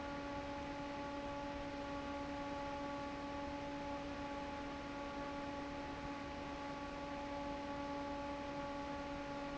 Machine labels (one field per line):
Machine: fan